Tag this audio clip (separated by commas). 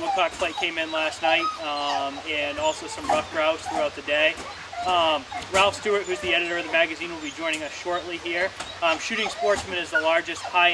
Animal, Speech